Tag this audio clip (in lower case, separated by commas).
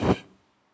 fire